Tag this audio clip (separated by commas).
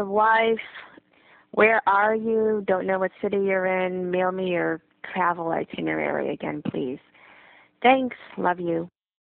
Speech